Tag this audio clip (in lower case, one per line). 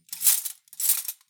domestic sounds
cutlery